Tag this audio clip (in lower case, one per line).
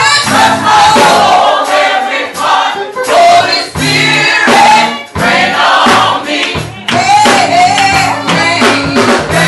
music